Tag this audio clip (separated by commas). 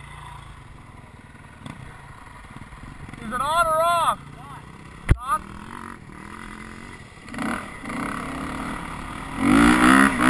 Speech